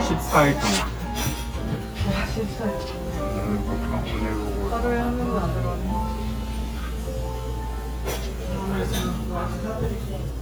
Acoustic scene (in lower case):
crowded indoor space